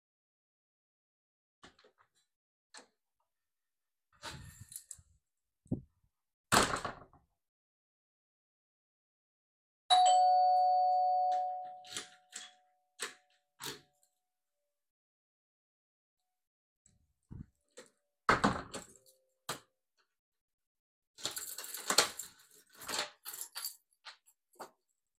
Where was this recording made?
hallway